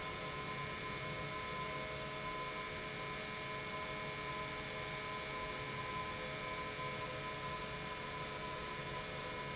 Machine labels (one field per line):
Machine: pump